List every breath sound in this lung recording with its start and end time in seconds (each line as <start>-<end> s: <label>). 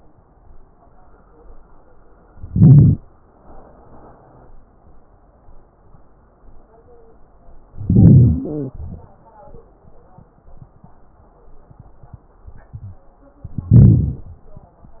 2.43-3.00 s: inhalation
2.43-3.00 s: crackles
7.84-8.72 s: inhalation
7.84-8.72 s: crackles
8.75-9.20 s: exhalation
8.75-9.20 s: crackles
13.64-14.32 s: inhalation
13.64-14.32 s: crackles